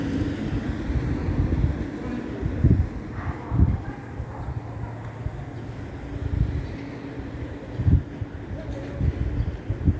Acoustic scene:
residential area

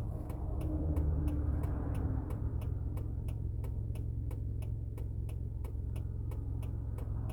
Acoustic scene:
car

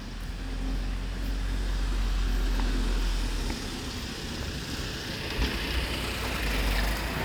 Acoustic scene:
residential area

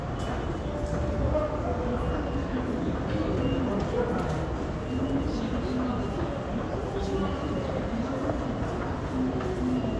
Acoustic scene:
crowded indoor space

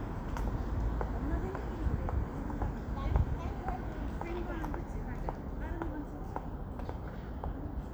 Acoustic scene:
residential area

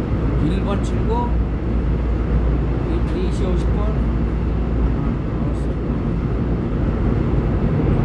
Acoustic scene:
subway train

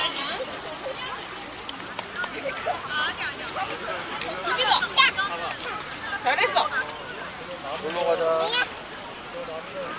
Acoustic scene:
park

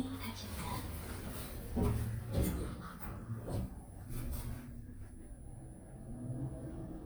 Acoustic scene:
elevator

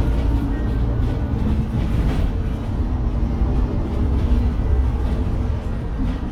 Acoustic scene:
bus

